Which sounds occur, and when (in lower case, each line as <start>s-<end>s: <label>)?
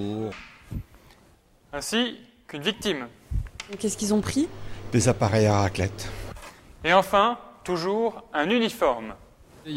0.0s-0.4s: man speaking
0.0s-9.7s: mechanisms
0.3s-0.5s: generic impact sounds
0.6s-0.8s: wind noise (microphone)
1.0s-1.1s: breathing
1.7s-2.2s: man speaking
2.4s-3.1s: man speaking
3.2s-3.4s: wind noise (microphone)
3.5s-3.7s: generic impact sounds
3.6s-4.5s: woman speaking
3.7s-5.9s: conversation
4.6s-4.8s: breathing
4.9s-5.9s: man speaking
5.9s-6.2s: breathing
6.3s-6.5s: generic impact sounds
6.8s-7.4s: man speaking
7.6s-8.2s: man speaking
8.3s-9.1s: man speaking